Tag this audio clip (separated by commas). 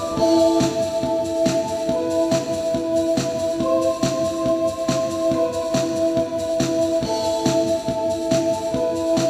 Techno, Music, Electronic music